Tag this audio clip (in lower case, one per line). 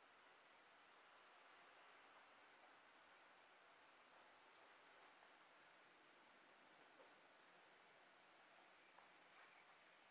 silence